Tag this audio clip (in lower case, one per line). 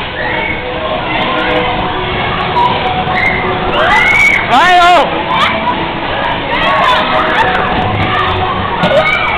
music
speech